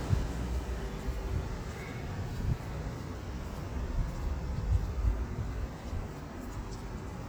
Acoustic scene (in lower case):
residential area